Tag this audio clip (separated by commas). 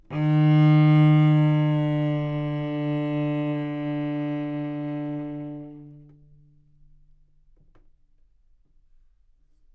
Musical instrument, Bowed string instrument, Music